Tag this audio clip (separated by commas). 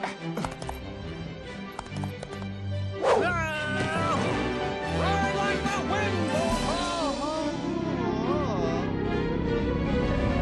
Speech, Music